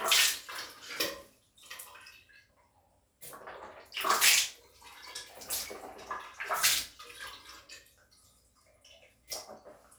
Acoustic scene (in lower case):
restroom